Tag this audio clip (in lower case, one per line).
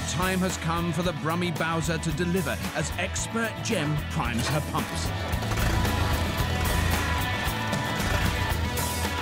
speech
music